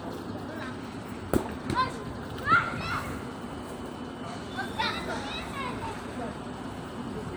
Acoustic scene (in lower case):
park